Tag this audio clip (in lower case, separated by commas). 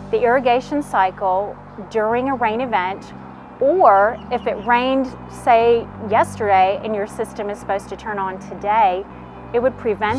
music, speech